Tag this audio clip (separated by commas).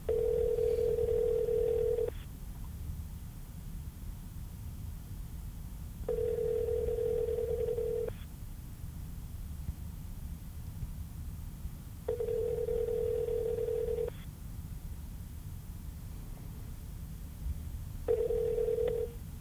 Telephone, Alarm